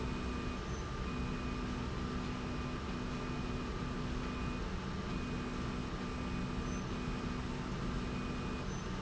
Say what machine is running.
slide rail